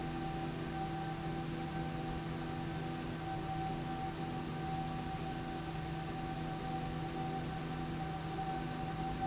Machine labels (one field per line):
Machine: slide rail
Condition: normal